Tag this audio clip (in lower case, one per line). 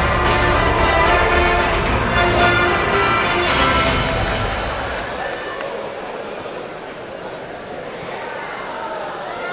speech
music